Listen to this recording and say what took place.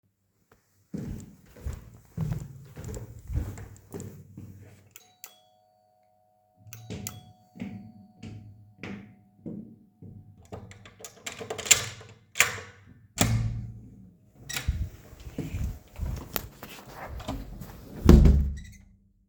You go to a friend's dorm. You ring the bell and wait for them to let you in.